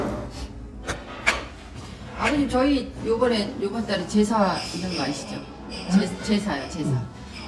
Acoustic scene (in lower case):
restaurant